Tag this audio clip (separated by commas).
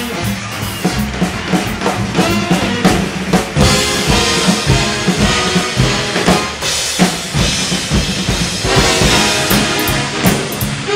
Musical instrument, playing drum kit, Drum, Drum kit, Music